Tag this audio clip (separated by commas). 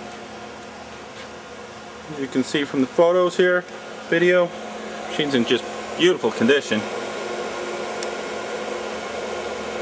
Speech